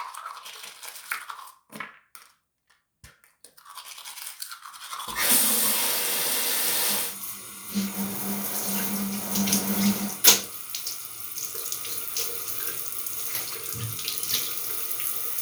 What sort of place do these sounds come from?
restroom